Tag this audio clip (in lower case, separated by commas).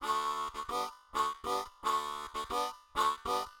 music, musical instrument, harmonica